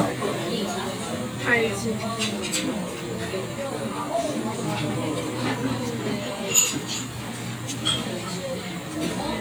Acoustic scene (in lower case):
crowded indoor space